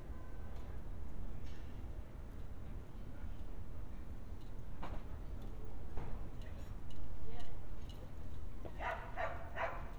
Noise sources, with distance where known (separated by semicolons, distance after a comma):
dog barking or whining